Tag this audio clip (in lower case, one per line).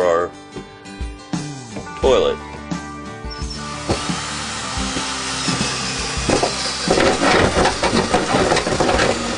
music
speech